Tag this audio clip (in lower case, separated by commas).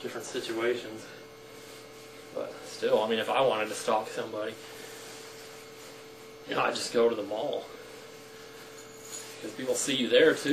speech